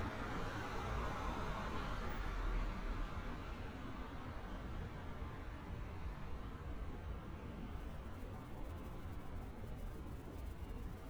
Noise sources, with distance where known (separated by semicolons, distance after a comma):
medium-sounding engine